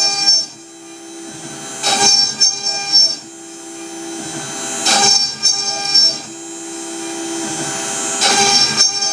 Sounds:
Electric toothbrush

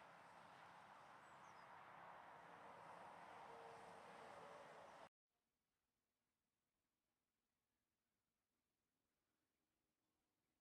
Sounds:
magpie calling

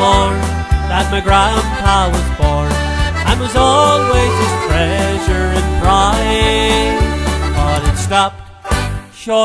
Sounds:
Music, Male singing

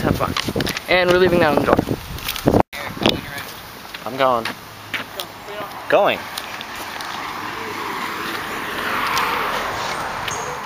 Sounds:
Speech

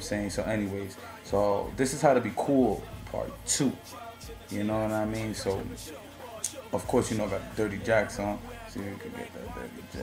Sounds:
Speech, Music

